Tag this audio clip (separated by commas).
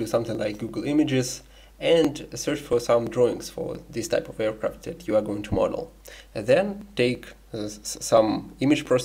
Speech